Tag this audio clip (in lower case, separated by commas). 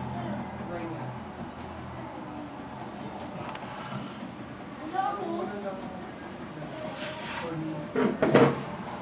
speech, inside a small room